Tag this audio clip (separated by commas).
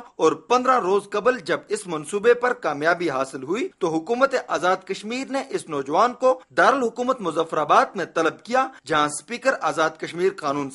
Speech